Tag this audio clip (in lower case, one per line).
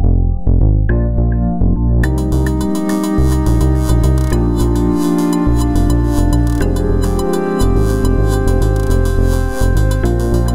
music
synthesizer